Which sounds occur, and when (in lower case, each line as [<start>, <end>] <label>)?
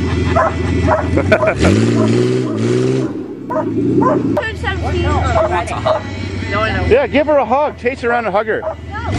[0.01, 9.15] car
[0.25, 0.48] bark
[0.82, 1.76] bark
[1.05, 1.87] laughter
[1.89, 2.27] bark
[3.45, 3.68] bark
[3.83, 4.21] bark
[4.30, 5.25] female speech
[5.34, 6.02] male speech
[5.36, 6.07] bark
[6.44, 8.71] male speech
[7.90, 8.29] bark
[8.90, 9.15] female speech